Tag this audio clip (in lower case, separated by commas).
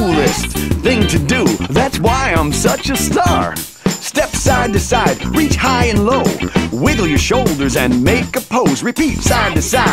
music